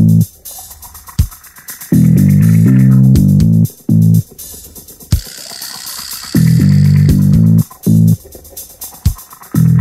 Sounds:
Drum machine, Music

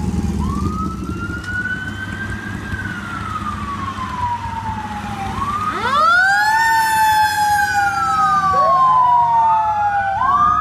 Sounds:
Vehicle, Truck, Emergency vehicle, fire truck (siren)

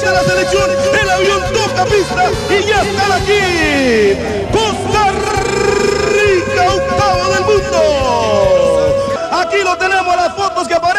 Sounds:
Speech, Music

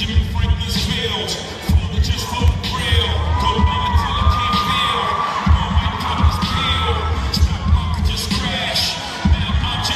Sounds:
Music, Speech

